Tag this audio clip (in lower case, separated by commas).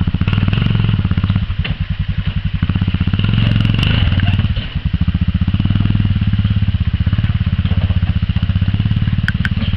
vehicle